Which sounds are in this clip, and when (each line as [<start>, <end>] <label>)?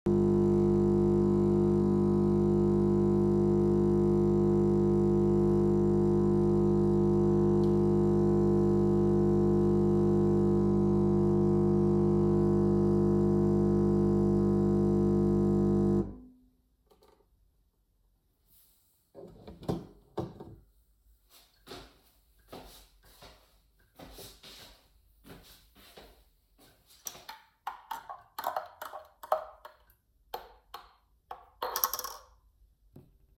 [0.00, 16.61] microwave
[0.05, 16.17] coffee machine
[19.05, 27.27] footsteps
[19.68, 20.49] coffee machine
[26.97, 32.41] cutlery and dishes